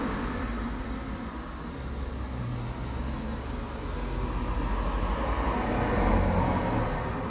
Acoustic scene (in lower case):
street